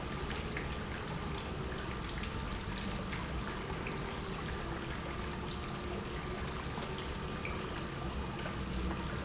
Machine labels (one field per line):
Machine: pump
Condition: normal